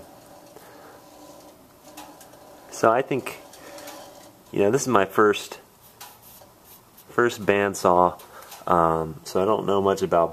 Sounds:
speech

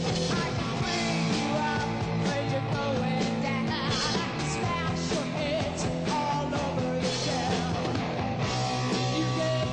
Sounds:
music

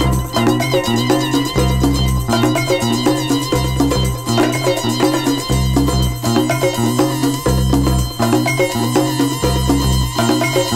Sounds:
salsa music
music

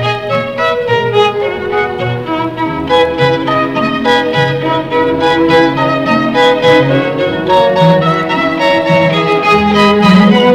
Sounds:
orchestra
fiddle

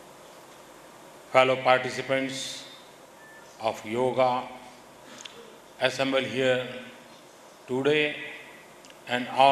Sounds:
speech
man speaking
monologue

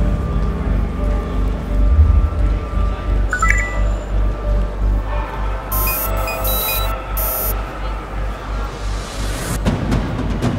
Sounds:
music

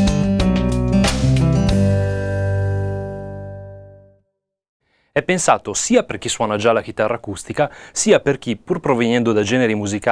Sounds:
speech
guitar
plucked string instrument
acoustic guitar
music
musical instrument
strum

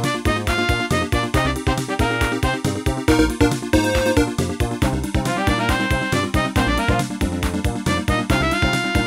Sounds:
music

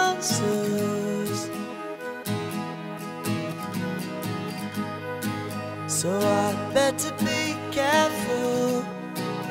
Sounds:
music

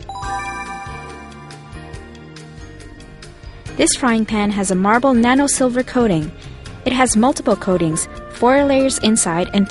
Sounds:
music
speech

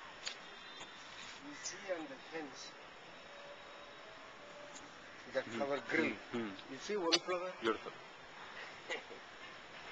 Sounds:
speech

